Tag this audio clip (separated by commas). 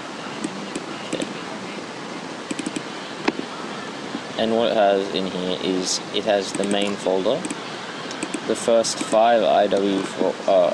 Speech